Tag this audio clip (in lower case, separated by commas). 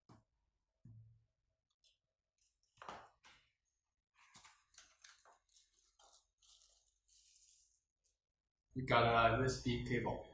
speech